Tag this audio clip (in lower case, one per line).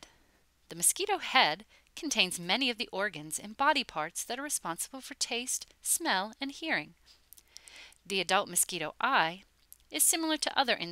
speech